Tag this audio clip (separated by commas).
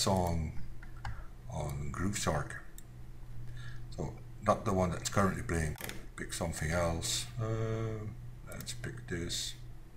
Speech, Clicking